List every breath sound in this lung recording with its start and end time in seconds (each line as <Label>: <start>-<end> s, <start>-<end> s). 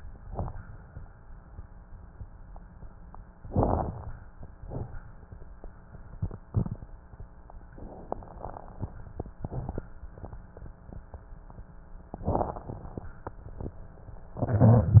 Inhalation: 3.47-3.93 s, 12.24-12.94 s
Exhalation: 4.59-5.14 s
Crackles: 3.47-3.93 s, 4.59-5.14 s, 12.24-12.94 s